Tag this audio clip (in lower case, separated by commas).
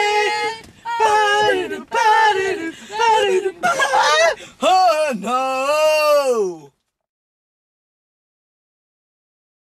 speech